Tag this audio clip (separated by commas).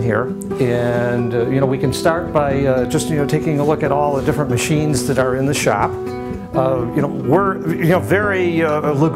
Speech, Plucked string instrument, Music, Musical instrument, Guitar, Acoustic guitar